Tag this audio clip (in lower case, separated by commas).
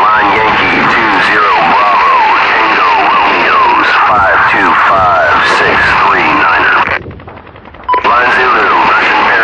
speech